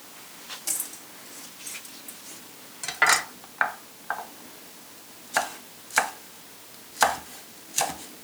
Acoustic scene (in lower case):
kitchen